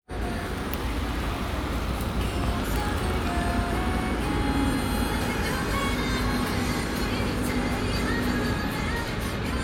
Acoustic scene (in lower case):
street